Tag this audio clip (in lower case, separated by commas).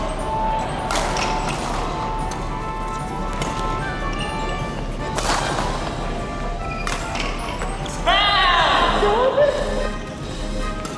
playing badminton